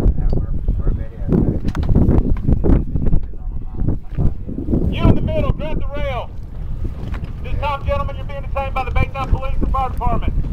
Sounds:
speech, sailing ship

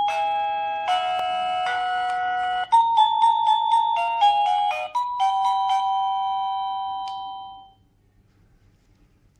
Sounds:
doorbell, music

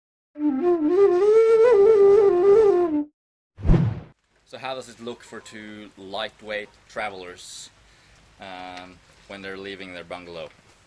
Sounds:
flute, music, speech

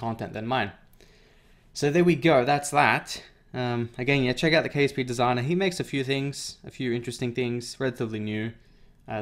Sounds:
speech

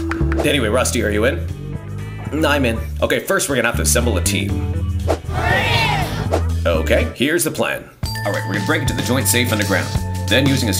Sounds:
speech, music

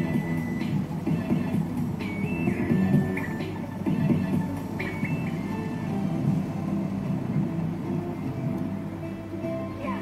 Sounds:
soundtrack music, music

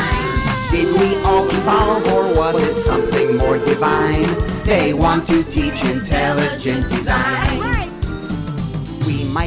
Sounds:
music

